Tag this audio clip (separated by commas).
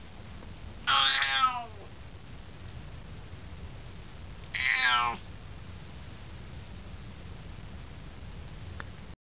Meow, Cat, Animal, pets, cat meowing